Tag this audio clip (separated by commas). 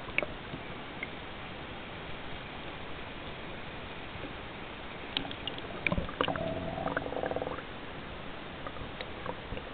outside, rural or natural